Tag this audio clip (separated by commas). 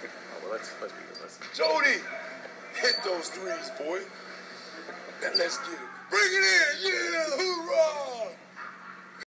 Narration, Male speech, Speech